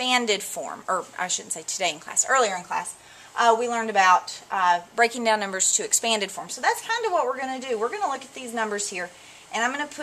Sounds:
speech

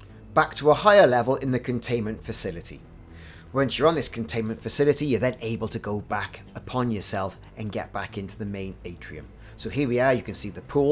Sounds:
striking pool

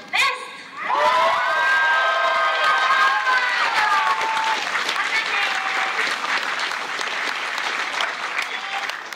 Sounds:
people clapping, speech, applause

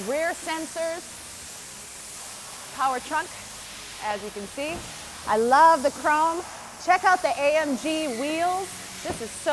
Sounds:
speech

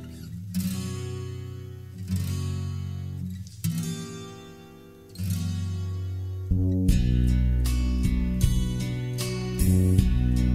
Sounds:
strum, plucked string instrument, musical instrument, music, guitar

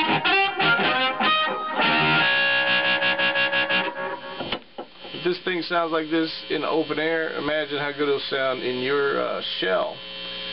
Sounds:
harmonica, music, speech

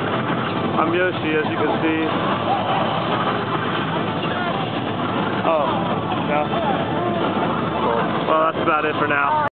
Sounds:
speech

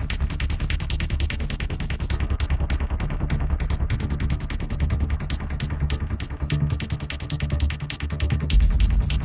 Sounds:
music

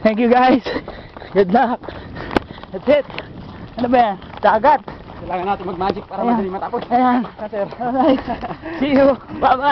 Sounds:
speech, outside, rural or natural

